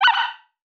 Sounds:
Animal

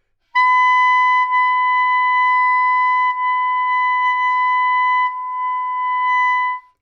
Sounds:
Musical instrument, woodwind instrument, Music

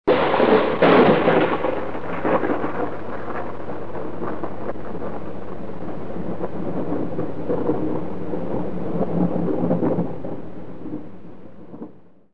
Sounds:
Thunder, Thunderstorm

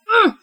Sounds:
Human voice

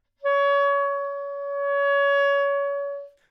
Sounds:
Music, Musical instrument, Wind instrument

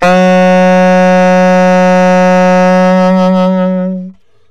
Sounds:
Musical instrument, Wind instrument, Music

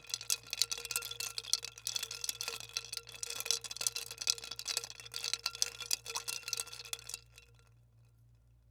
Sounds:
Liquid

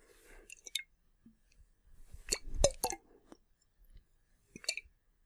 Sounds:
Liquid

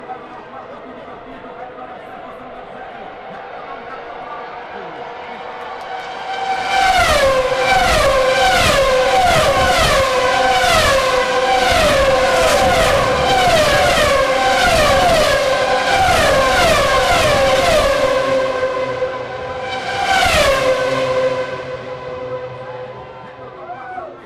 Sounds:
Car, Motor vehicle (road), Accelerating, Vehicle, Engine, auto racing, Mechanisms

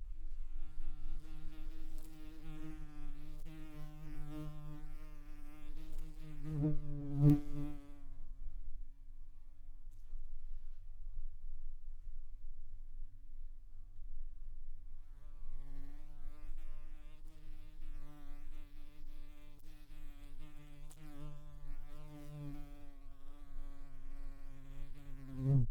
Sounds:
Buzz, Insect, Wild animals, Animal

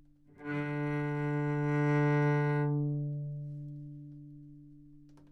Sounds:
Bowed string instrument, Music, Musical instrument

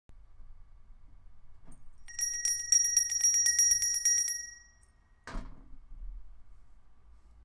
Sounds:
Bell

